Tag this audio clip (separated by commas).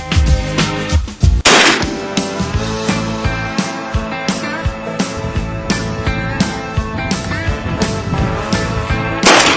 Music